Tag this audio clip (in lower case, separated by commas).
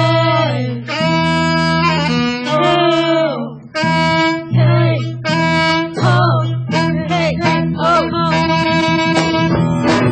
singing, inside a large room or hall, music, piano